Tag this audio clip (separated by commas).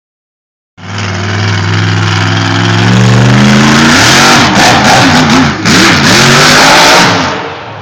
Truck, Vehicle